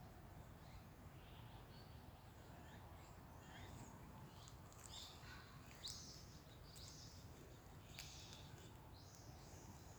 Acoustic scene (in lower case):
park